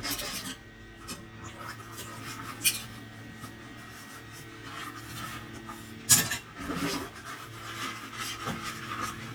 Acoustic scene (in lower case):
kitchen